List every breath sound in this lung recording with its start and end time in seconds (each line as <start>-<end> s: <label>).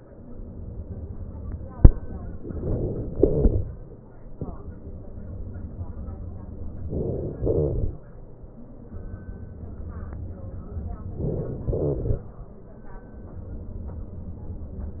6.84-7.92 s: inhalation
11.14-12.22 s: inhalation